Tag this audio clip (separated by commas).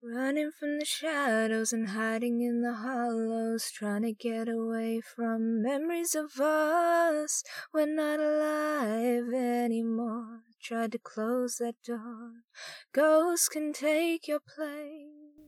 Female singing, Human voice, Singing